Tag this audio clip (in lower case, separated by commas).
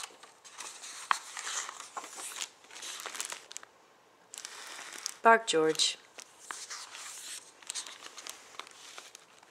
inside a small room, speech